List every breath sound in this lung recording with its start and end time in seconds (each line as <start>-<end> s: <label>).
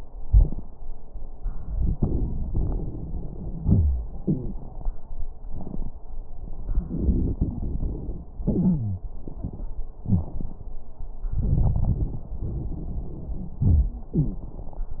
1.57-3.29 s: inhalation
1.57-3.29 s: crackles
3.60-4.10 s: wheeze
3.60-4.85 s: exhalation
4.21-4.62 s: wheeze
6.86-8.28 s: inhalation
6.86-8.28 s: crackles
8.42-9.04 s: exhalation
8.42-9.04 s: wheeze
10.05-10.29 s: wheeze
11.31-12.20 s: inhalation
11.31-12.20 s: crackles
12.39-13.56 s: exhalation
12.39-13.56 s: crackles
13.65-14.13 s: wheeze
14.17-14.52 s: wheeze